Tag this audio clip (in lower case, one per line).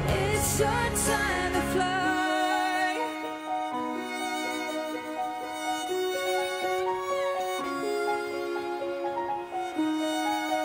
singing
fiddle